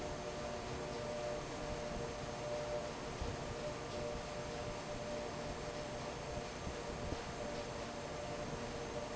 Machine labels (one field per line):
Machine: fan